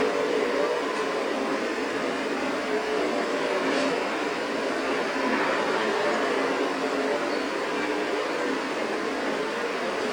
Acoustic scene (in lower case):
street